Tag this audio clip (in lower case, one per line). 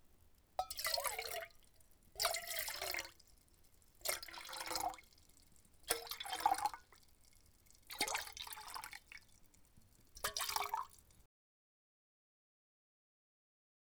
liquid